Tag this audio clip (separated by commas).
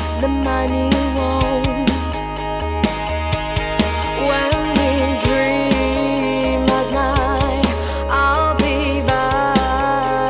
Music